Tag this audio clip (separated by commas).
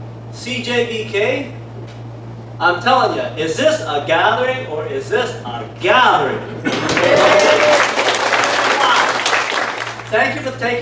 Speech, man speaking, monologue